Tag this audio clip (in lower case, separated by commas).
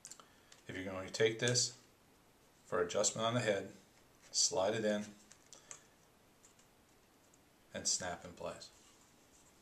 inside a small room, speech